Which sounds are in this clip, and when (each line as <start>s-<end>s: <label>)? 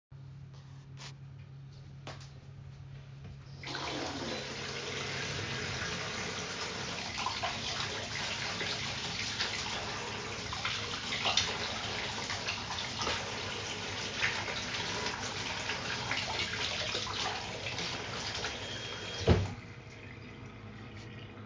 0.6s-3.2s: footsteps
3.6s-19.7s: running water